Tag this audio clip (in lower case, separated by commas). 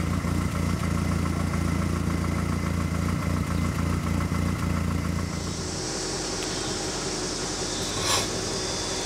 vehicle, car, outside, urban or man-made